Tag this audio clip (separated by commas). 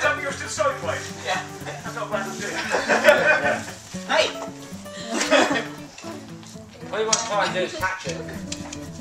Music, Speech